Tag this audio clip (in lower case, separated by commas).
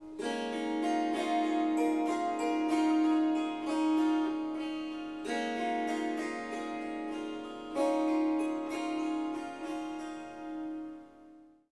musical instrument, music, harp